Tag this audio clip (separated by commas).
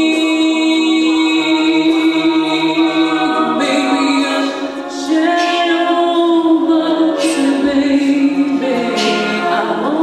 Singing, Music, Choir